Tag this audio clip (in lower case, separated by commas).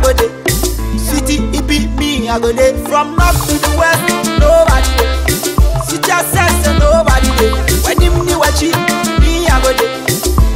music of africa, music